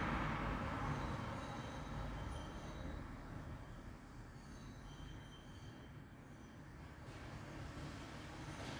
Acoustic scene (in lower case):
street